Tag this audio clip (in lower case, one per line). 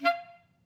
music
woodwind instrument
musical instrument